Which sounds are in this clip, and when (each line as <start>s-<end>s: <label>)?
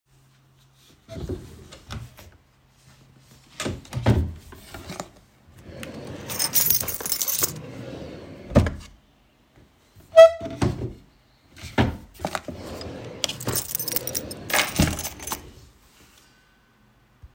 3.6s-5.2s: wardrobe or drawer
5.7s-9.0s: wardrobe or drawer
6.3s-7.6s: keys
13.2s-15.6s: keys